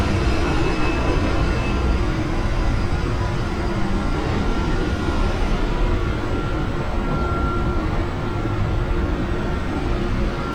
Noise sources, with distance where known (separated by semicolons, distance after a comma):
reverse beeper, far